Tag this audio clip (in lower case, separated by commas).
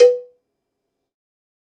cowbell, bell